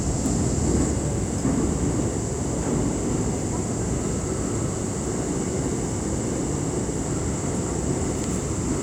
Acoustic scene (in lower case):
subway train